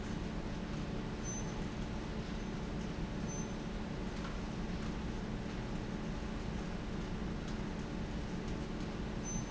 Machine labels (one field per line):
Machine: fan